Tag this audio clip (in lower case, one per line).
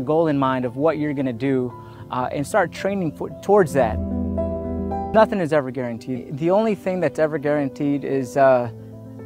speech
music